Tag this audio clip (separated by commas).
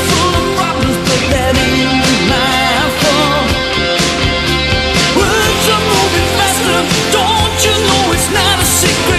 Music